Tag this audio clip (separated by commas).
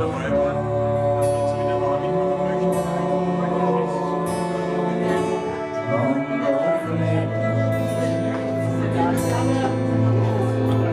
Speech, Music